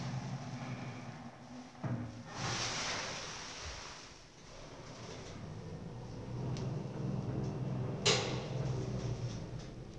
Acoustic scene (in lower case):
elevator